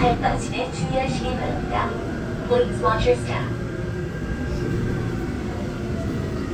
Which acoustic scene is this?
subway train